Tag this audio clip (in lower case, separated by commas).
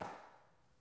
hands, clapping